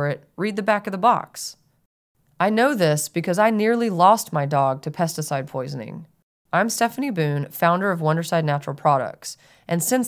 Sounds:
Speech

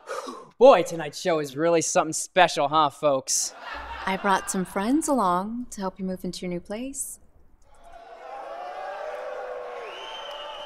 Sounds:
Conversation

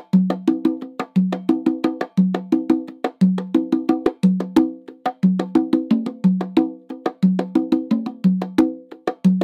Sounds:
playing bongo

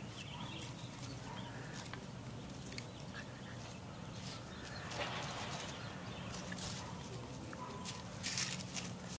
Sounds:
Animal

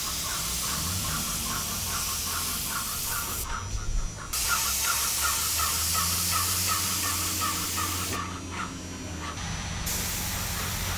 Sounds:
Spray

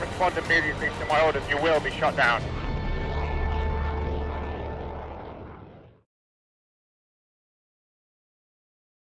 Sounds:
Music, Speech

